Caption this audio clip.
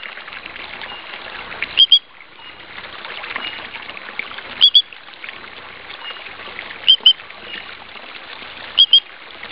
Water running and a frog croaking